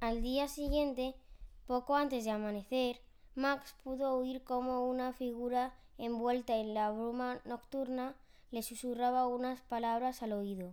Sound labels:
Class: speech